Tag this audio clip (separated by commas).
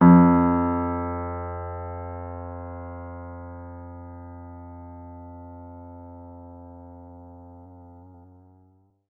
Musical instrument, Keyboard (musical), Piano, Music